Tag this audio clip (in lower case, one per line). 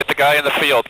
man speaking
human voice
speech